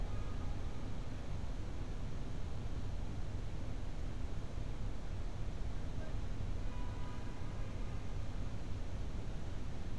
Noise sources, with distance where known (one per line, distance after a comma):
car horn, far